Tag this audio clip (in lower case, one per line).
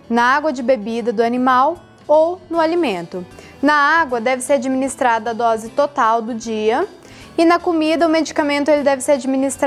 music
speech